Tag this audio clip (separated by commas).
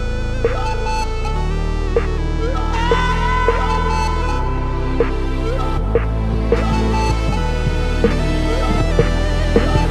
Music